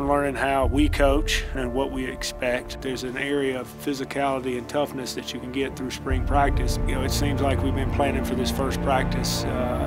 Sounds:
music, speech

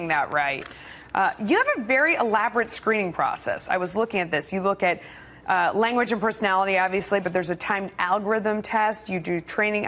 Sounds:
speech

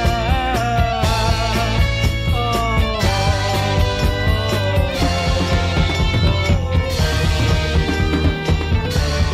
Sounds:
psychedelic rock, music

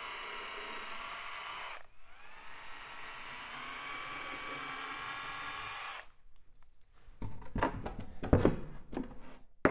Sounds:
wood

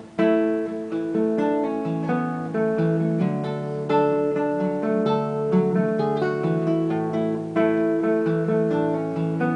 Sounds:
acoustic guitar, musical instrument, music, plucked string instrument, strum, playing acoustic guitar, guitar

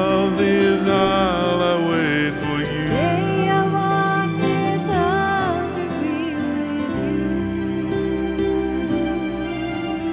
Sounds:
music, wedding music

